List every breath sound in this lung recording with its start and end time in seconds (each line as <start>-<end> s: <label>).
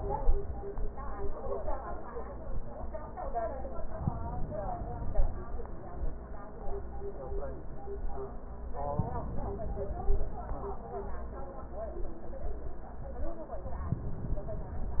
3.86-5.51 s: inhalation
8.75-10.41 s: inhalation